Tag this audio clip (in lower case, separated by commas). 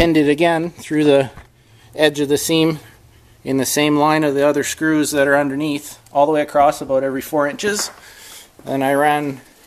speech